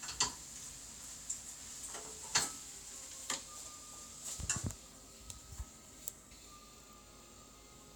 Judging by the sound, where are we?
in a kitchen